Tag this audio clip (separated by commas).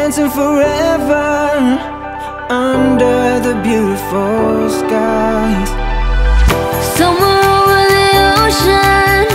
Music, Rhythm and blues